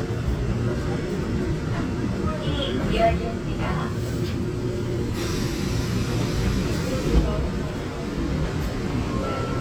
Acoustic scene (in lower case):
subway train